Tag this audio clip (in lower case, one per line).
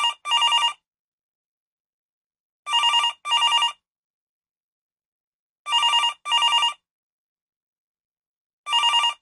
sound effect
telephone
telephone bell ringing